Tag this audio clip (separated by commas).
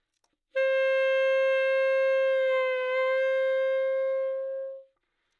Music, woodwind instrument, Musical instrument